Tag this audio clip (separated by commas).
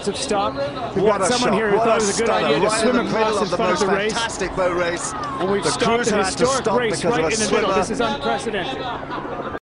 Speech, Vehicle